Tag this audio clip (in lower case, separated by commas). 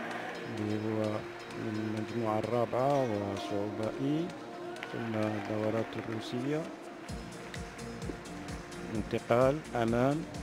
music, speech